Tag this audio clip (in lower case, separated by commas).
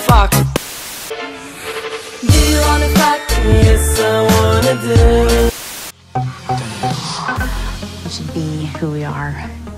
music, speech